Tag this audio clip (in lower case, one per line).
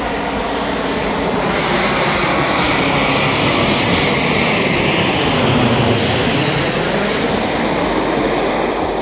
airplane flyby